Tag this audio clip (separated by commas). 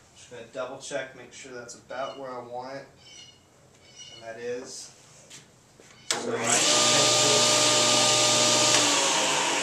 Speech, Animal